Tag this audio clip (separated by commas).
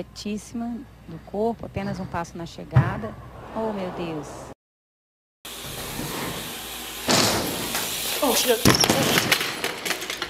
Speech, inside a large room or hall